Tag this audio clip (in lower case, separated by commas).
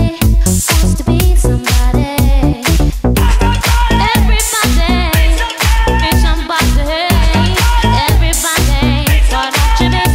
music, dance music, house music